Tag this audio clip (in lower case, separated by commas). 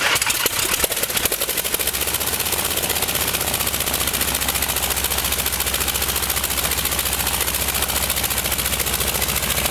engine